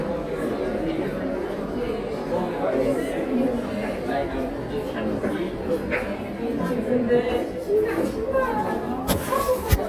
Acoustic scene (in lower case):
crowded indoor space